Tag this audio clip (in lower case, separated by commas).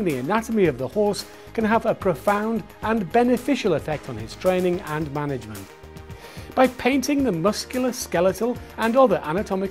music, speech